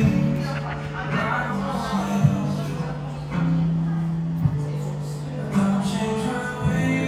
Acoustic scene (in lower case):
cafe